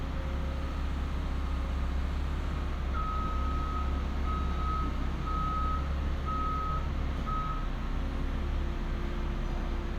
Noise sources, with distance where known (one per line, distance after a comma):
reverse beeper, near